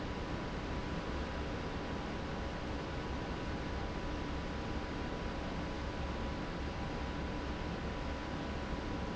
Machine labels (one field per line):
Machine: fan